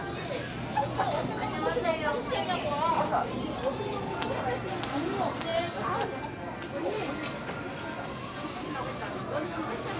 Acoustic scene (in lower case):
crowded indoor space